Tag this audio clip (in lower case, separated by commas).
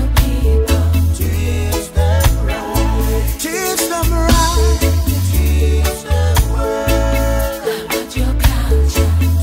soul music